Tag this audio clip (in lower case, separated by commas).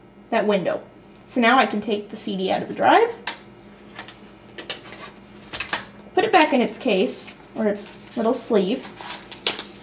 speech